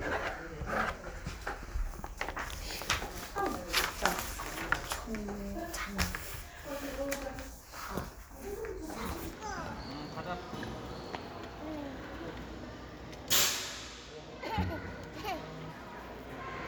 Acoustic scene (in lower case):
crowded indoor space